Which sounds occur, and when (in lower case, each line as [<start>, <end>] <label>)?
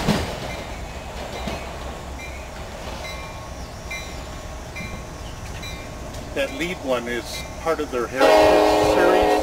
[0.00, 9.42] train
[0.46, 0.81] bell
[1.13, 1.80] clickety-clack
[1.28, 1.61] bell
[2.15, 2.43] bell
[2.50, 2.78] clickety-clack
[2.97, 3.35] bell
[3.87, 4.26] bell
[4.70, 5.08] bell
[4.79, 4.95] generic impact sounds
[5.20, 5.34] chirp
[5.39, 5.61] clickety-clack
[5.58, 5.92] bell
[6.10, 6.16] generic impact sounds
[6.34, 7.40] male speech
[6.42, 6.73] bell
[6.43, 6.50] generic impact sounds
[7.28, 7.63] bell
[7.60, 8.31] male speech
[8.15, 9.42] train horn
[8.95, 9.24] male speech